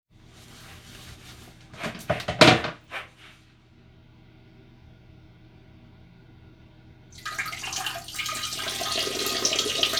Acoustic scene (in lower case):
restroom